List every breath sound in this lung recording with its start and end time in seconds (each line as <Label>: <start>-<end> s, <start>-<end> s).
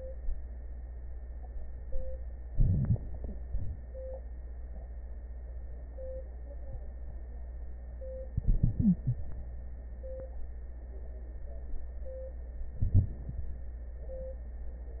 Inhalation: 2.53-3.00 s, 8.37-9.22 s, 12.80-13.15 s
Exhalation: 3.47-3.90 s
Stridor: 8.77-9.22 s